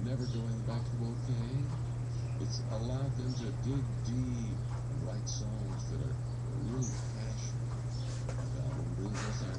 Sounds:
speech

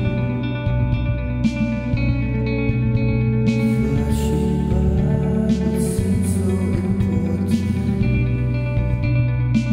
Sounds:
music

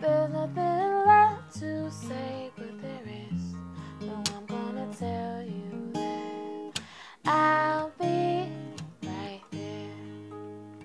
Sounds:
music

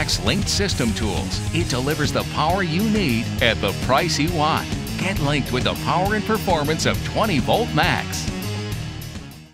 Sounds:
speech
music

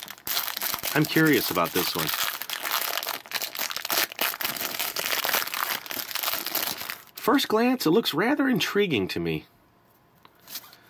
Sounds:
speech
inside a small room
crinkling

